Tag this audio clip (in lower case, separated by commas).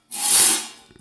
tools